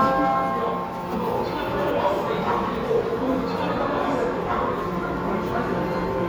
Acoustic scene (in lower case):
subway station